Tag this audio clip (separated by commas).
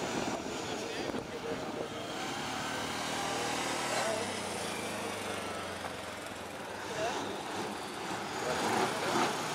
Speech